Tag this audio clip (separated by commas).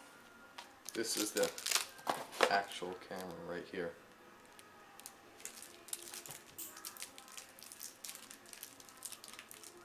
Speech